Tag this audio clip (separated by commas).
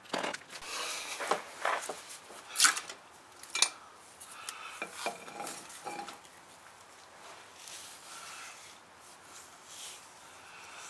silverware